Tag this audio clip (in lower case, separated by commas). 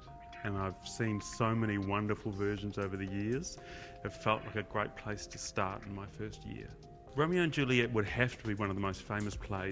music, speech